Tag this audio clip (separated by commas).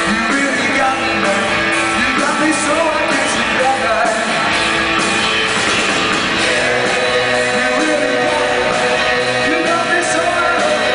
Bass drum, Rock music, Musical instrument, Music, Drum, Drum kit